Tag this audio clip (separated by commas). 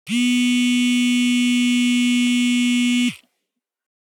Alarm, Telephone